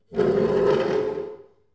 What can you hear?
furniture moving